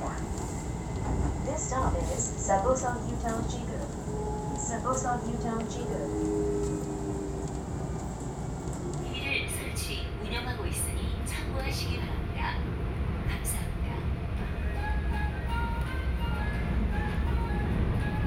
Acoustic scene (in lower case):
subway train